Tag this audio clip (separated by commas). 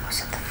Human voice, Whispering